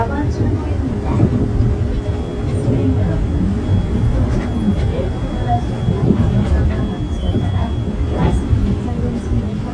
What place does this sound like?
bus